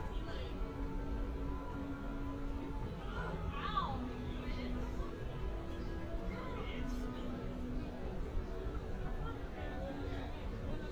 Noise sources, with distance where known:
music from a fixed source
person or small group talking

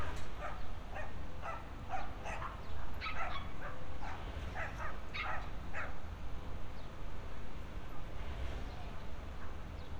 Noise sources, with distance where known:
dog barking or whining

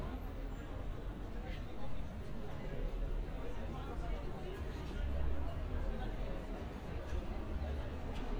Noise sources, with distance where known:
person or small group talking, far

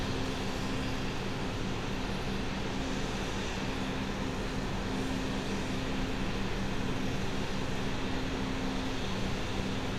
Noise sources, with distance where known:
engine of unclear size

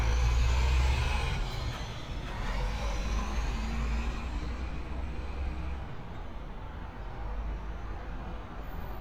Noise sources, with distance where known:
medium-sounding engine
large-sounding engine

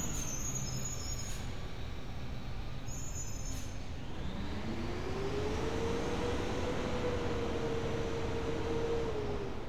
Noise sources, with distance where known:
engine of unclear size

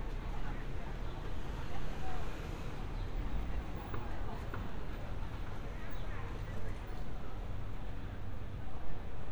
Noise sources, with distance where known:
person or small group talking, far

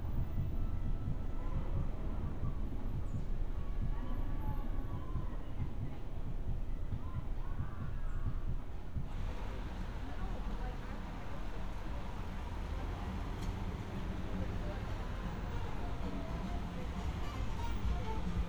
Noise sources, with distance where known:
music from an unclear source
person or small group talking

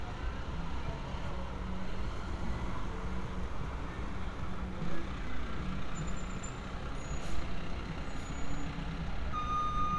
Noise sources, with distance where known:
large-sounding engine
reverse beeper, near

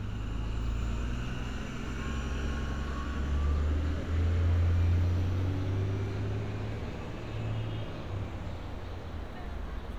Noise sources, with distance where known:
large-sounding engine, near

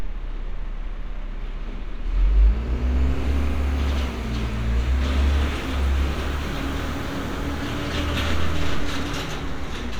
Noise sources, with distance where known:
engine of unclear size, near

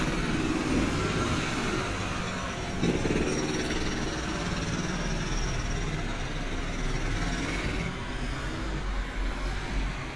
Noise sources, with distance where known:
jackhammer, near

